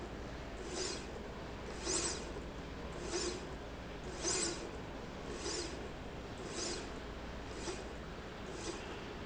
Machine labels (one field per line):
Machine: slide rail